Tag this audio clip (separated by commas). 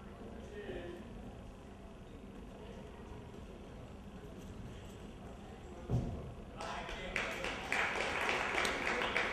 Speech